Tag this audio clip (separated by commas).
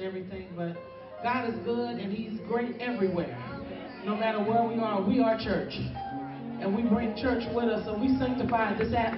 Music, Speech